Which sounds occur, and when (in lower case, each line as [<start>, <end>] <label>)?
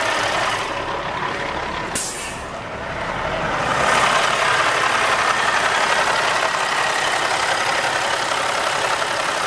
[0.00, 9.45] truck
[1.87, 2.39] air brake